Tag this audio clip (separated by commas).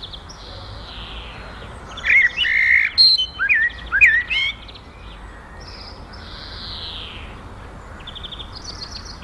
tweeting